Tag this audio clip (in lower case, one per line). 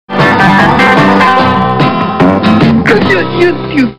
music
speech